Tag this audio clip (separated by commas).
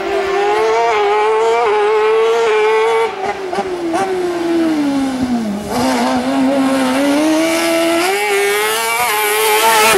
Vehicle, Car